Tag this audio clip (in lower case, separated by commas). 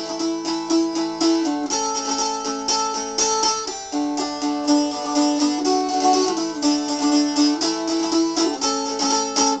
slide guitar, music